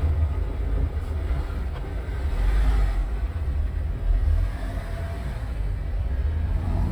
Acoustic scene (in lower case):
car